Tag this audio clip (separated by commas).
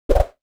swoosh